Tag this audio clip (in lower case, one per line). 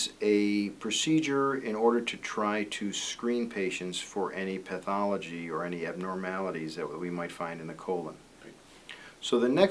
speech